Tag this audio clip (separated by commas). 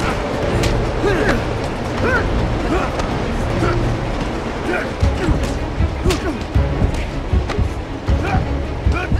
Music